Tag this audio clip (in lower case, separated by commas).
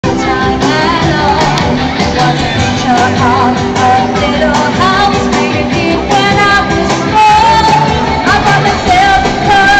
speech, music, inside a large room or hall, singing